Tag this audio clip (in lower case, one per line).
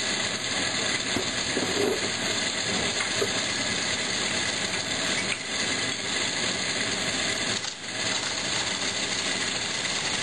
lathe spinning